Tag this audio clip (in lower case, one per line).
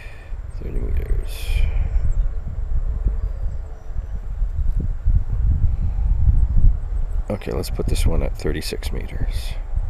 speech